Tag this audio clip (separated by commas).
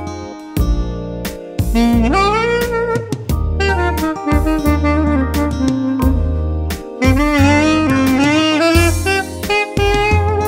playing saxophone